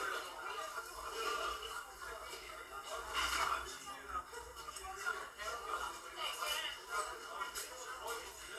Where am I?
in a crowded indoor space